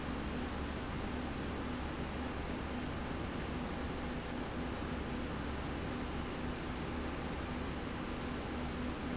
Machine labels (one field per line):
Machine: slide rail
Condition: normal